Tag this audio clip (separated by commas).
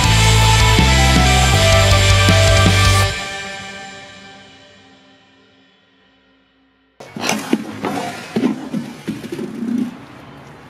playing bass drum